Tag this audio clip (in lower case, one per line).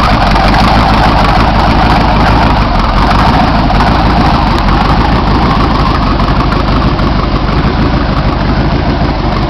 car
vehicle
idling